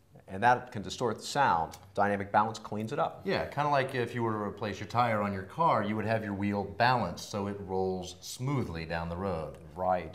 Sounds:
Speech

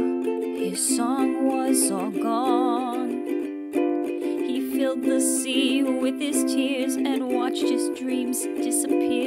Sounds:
playing ukulele

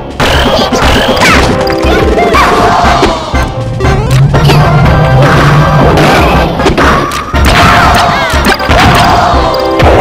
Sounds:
Smash

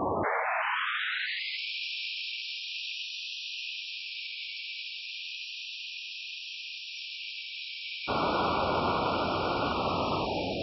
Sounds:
Wind noise (microphone)

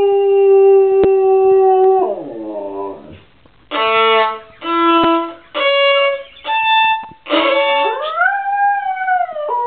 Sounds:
dog howling

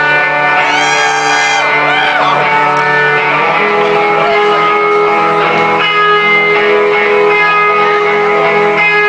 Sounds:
Reverberation, Music

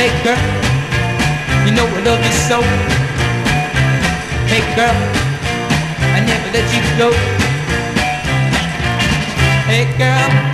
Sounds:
Music

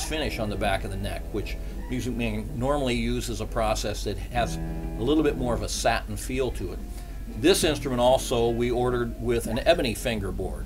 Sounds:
Plucked string instrument, Speech, Guitar, Music, Electric guitar, Musical instrument

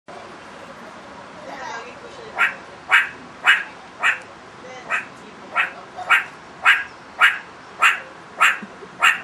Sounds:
Wild animals, Animal, Speech

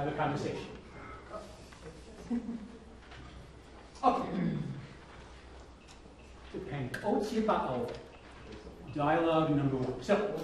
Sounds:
Speech

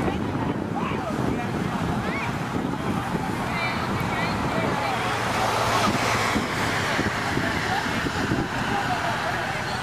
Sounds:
Vehicle, outside, urban or man-made, Speech

